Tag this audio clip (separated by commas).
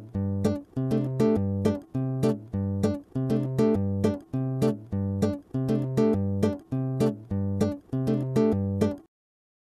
Music